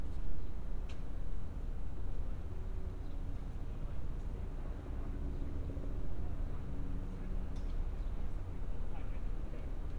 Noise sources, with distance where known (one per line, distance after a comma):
background noise